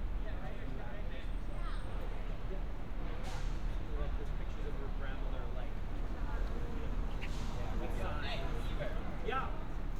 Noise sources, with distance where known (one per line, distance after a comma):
engine of unclear size
non-machinery impact, far
person or small group talking, near